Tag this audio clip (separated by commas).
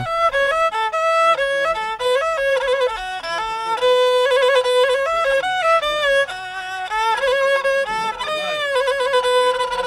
outside, rural or natural, Music